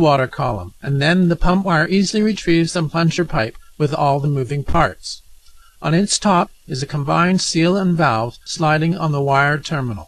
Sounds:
speech

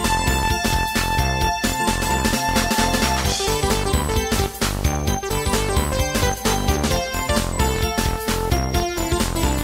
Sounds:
video game music, music

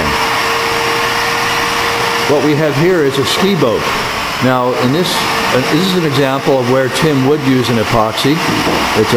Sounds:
speech

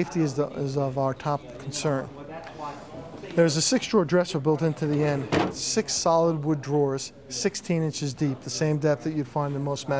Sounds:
speech

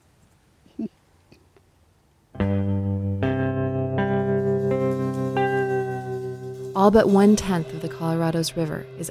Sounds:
outside, rural or natural, music, speech, effects unit

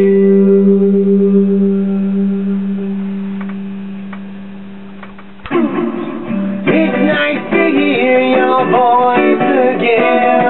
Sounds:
music

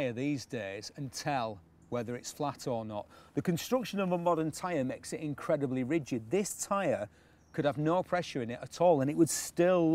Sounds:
speech

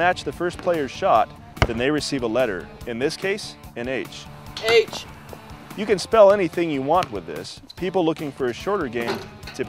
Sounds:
speech, music

